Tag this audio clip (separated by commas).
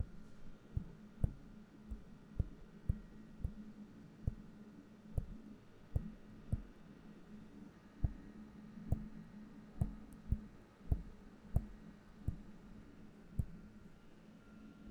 Tap